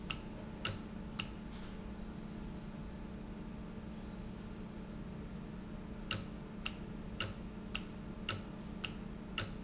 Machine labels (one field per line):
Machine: valve